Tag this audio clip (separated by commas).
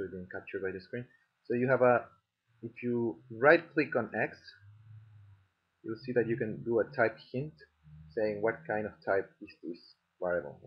Speech, inside a small room